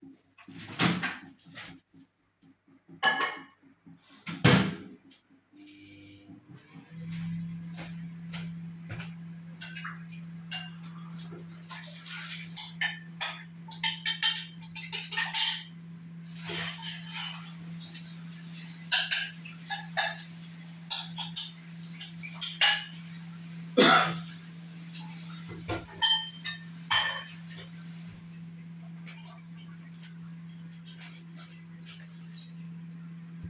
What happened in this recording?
I opened the microwave, placed my mug inside, closed it and turned it on. Then I walked to the sink, scraped leftover food from a bowl with a spoon, turned on the sink and washed it. I coughed, then I turned off the sink.